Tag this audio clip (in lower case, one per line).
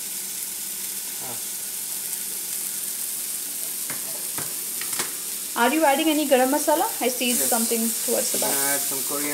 inside a small room
speech